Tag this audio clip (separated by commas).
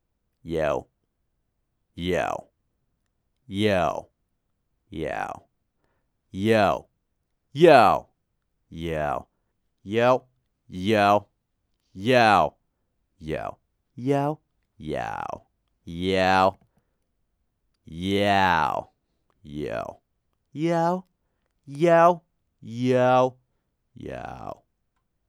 Human voice, man speaking, Speech